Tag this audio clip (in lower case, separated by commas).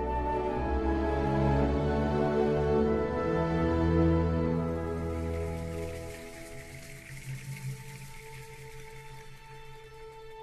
music